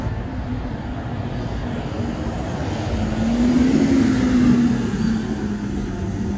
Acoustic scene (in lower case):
residential area